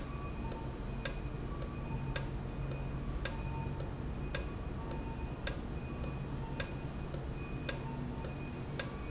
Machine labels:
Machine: valve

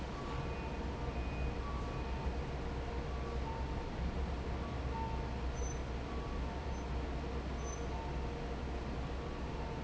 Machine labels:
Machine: fan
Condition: normal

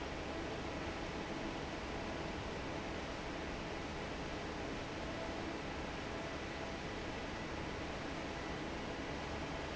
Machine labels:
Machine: fan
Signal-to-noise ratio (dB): 0 dB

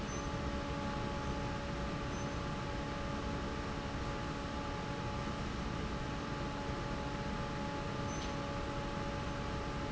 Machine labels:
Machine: fan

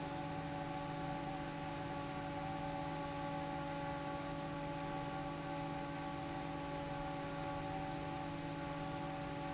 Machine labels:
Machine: fan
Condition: normal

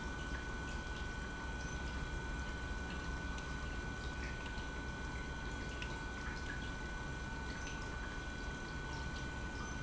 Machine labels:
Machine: pump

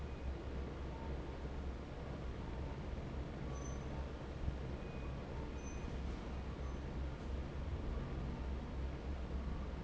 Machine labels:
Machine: fan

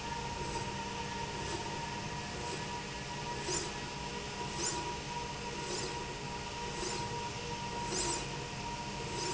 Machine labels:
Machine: slide rail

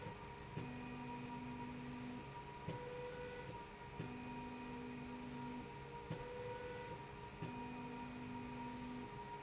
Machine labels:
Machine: slide rail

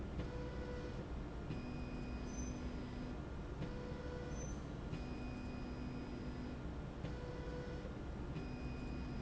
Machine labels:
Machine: slide rail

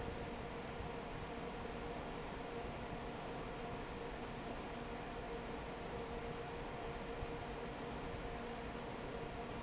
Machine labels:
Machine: fan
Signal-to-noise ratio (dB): 6 dB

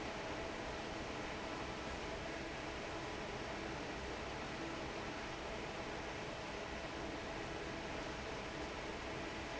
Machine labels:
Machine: fan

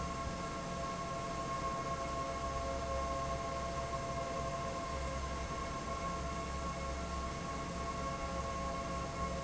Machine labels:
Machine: fan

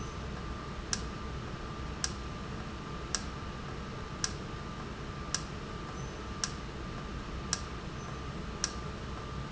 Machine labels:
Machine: valve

